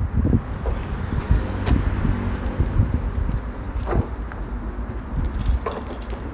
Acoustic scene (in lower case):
residential area